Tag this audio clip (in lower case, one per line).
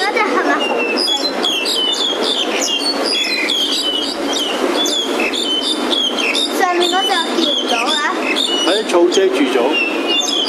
bird
tweet
speech